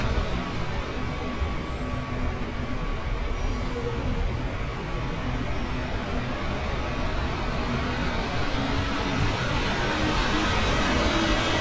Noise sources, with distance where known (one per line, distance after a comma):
large-sounding engine